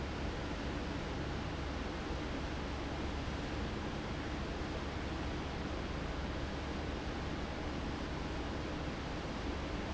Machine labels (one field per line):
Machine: fan